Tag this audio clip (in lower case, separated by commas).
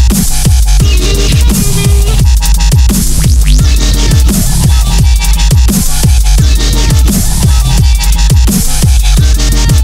music, dubstep